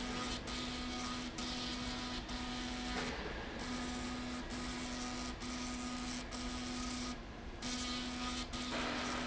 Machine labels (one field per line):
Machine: slide rail